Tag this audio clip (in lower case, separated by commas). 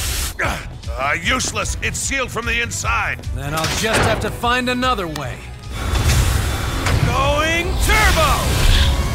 music, speech